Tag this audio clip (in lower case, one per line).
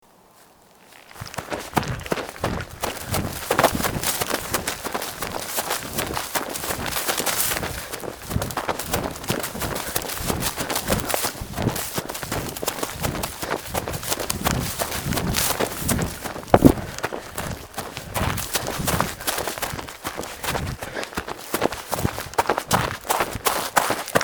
run